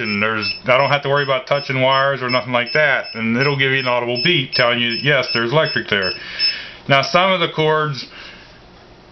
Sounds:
Speech, Alarm clock

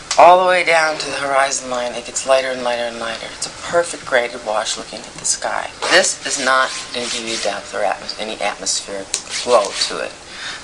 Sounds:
Speech, inside a small room

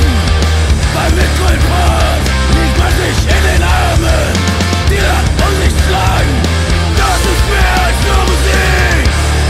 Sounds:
Music

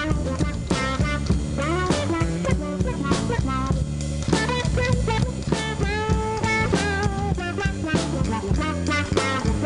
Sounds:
Music, Plucked string instrument, Guitar, Musical instrument, Strum

